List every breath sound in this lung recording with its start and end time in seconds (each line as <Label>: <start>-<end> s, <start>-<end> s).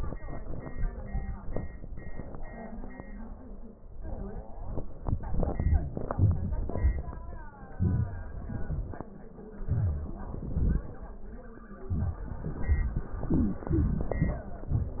Wheeze: 13.31-13.65 s, 13.71-14.05 s